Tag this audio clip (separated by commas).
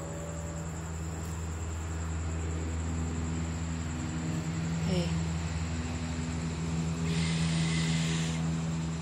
Speech